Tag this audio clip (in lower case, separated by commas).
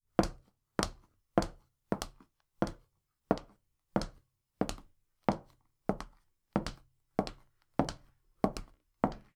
walk